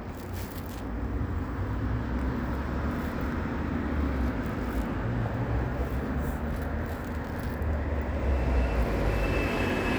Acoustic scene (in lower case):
residential area